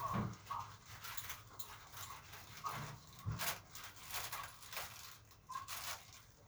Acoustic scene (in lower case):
elevator